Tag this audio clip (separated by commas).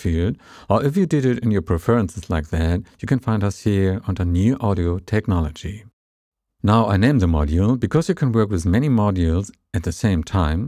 Speech